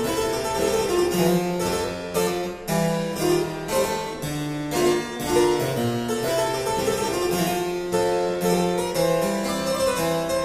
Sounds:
playing harpsichord, Keyboard (musical), Harpsichord

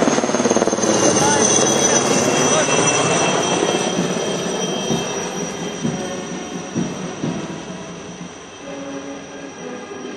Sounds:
Music, Speech, man speaking

